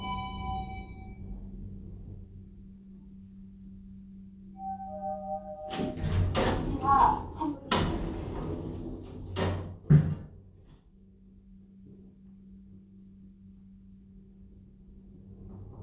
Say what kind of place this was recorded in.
elevator